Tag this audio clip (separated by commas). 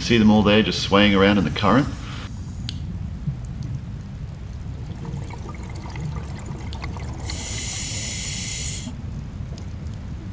dribble